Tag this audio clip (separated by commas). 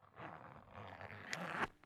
Zipper (clothing), Domestic sounds